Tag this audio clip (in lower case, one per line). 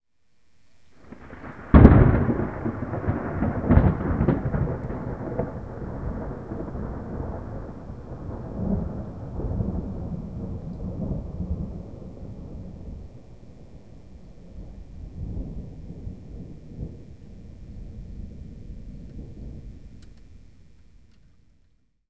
thunderstorm
thunder